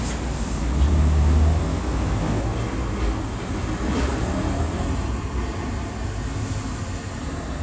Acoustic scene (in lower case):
street